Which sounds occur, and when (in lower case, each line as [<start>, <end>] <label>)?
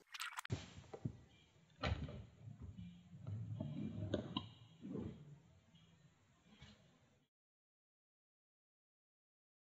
[0.04, 0.45] sound effect
[0.47, 0.72] door
[0.47, 7.25] background noise
[0.90, 1.07] clicking
[1.76, 2.06] door
[3.58, 3.65] clicking
[4.08, 4.44] clicking